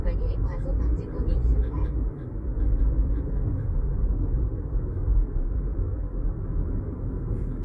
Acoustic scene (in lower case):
car